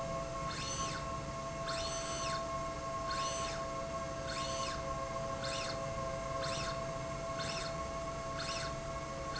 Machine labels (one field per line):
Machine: slide rail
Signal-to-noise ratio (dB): -6 dB